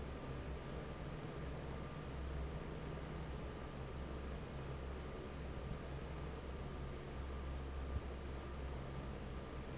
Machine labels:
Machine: fan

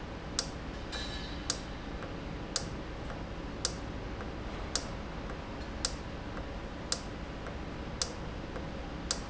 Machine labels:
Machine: valve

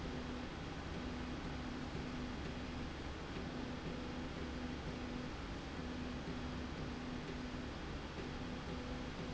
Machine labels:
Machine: slide rail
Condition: normal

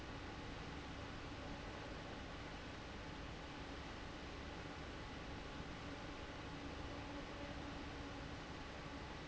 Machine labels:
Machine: fan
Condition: abnormal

